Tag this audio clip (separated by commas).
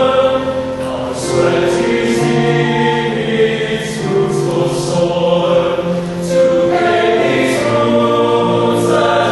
Male singing, Choir, Music